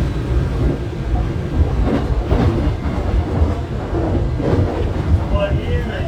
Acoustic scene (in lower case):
subway train